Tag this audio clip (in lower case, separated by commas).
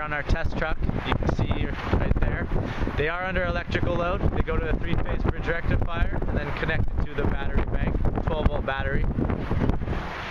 wind noise (microphone), wind